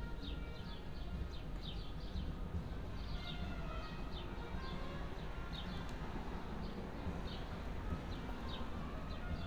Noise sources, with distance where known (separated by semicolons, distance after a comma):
engine of unclear size; music from a fixed source, far